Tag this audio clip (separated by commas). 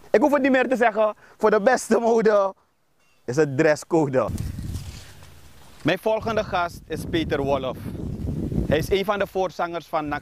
Speech